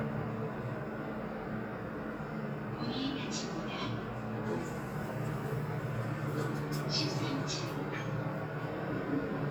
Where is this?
in an elevator